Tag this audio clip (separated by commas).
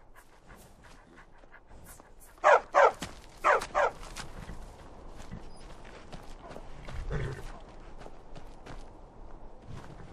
Dog, Bow-wow